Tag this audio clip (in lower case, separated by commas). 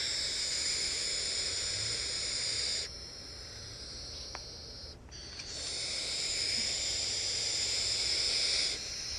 animal, bird